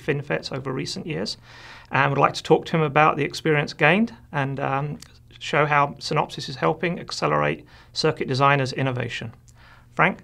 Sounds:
Speech

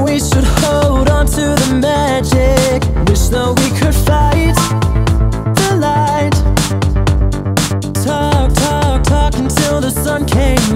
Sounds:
Music, Funk

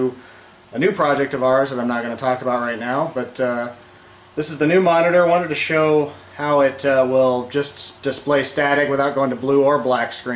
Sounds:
Speech

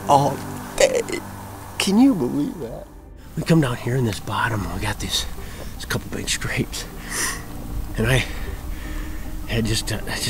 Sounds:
Speech, Music

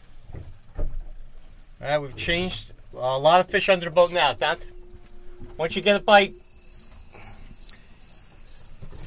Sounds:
Cricket, Insect

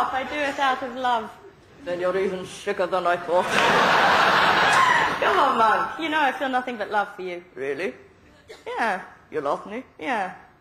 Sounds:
Speech

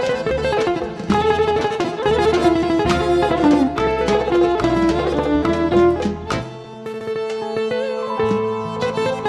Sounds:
Music

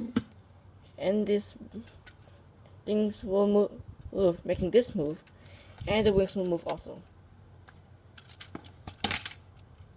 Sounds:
Keys jangling

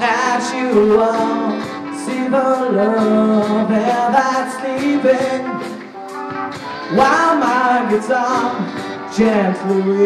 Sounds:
Plucked string instrument, Music, Acoustic guitar, Guitar, Musical instrument, Strum

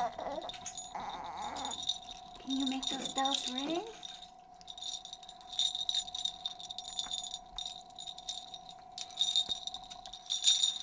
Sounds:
Speech

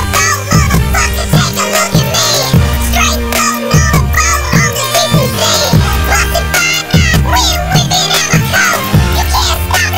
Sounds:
Music

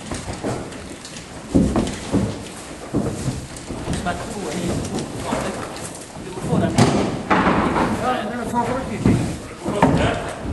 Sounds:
Speech

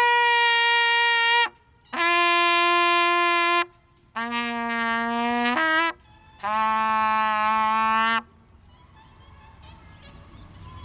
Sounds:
playing cornet

